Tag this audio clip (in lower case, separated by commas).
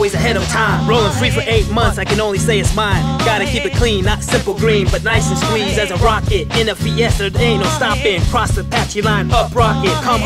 music